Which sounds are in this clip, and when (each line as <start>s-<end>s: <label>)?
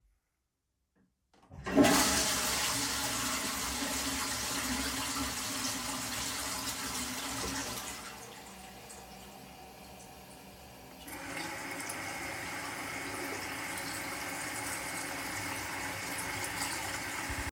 1.5s-8.2s: toilet flushing
10.9s-17.5s: running water